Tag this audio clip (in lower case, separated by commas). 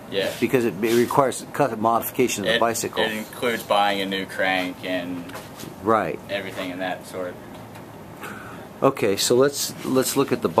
speech